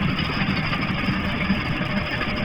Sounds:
Water vehicle, Vehicle, Engine

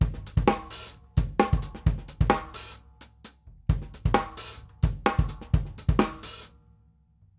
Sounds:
Drum kit, Percussion, Music, Musical instrument

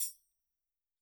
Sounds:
Percussion, Tambourine, Musical instrument, Music

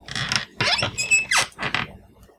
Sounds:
home sounds, Squeak, Door

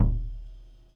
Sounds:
Music, Bass drum, Percussion, Musical instrument, Drum

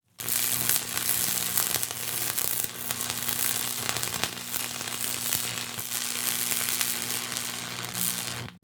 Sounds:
Tools

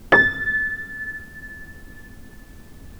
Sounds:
Piano, Music, Keyboard (musical), Musical instrument

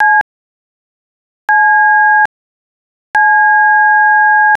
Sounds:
Alarm, Telephone

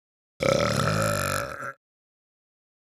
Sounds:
Burping

